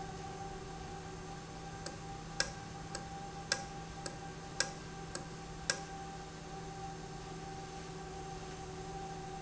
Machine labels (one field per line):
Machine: valve